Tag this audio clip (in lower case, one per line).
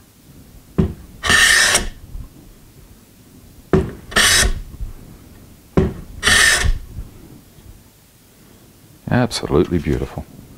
speech
tools
inside a small room